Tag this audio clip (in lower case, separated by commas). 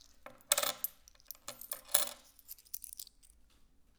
home sounds, coin (dropping)